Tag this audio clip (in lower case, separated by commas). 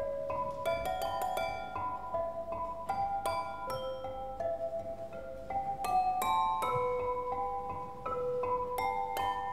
music